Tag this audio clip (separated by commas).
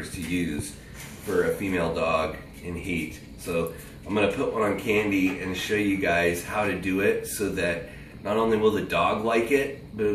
Speech